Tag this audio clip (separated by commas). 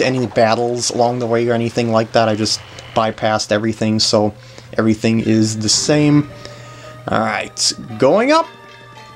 Music, Speech